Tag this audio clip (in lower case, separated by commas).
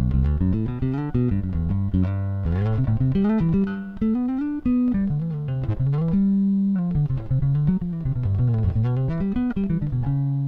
music, bass guitar, guitar, plucked string instrument, musical instrument